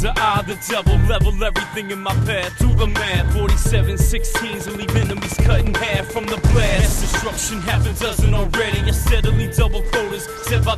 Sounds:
music, funk

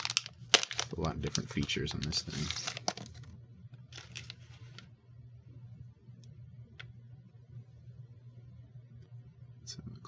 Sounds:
inside a small room, speech

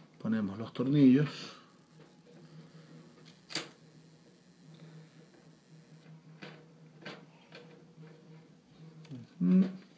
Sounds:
speech

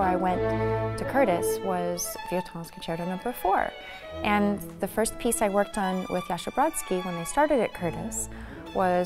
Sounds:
musical instrument, violin, music, speech

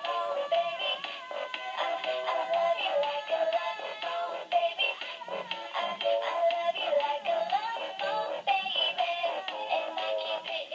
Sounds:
female singing, music

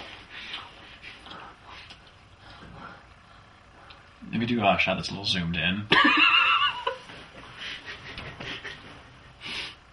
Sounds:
speech

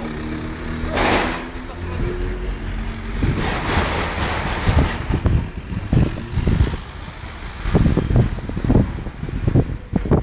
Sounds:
speech

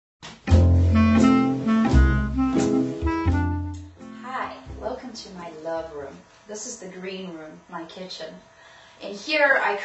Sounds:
music, speech, inside a small room

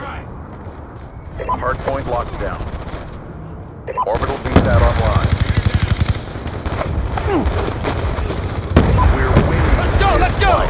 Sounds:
speech

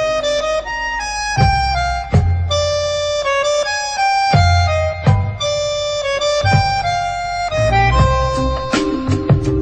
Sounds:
music, harmonica

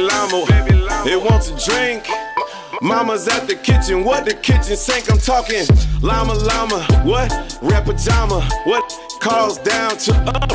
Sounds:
rapping

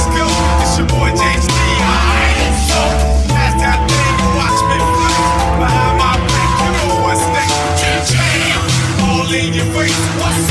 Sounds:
music, exciting music

